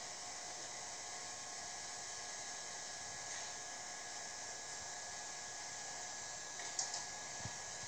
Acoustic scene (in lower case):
subway train